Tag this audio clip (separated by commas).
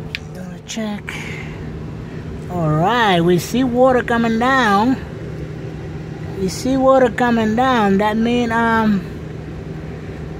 Speech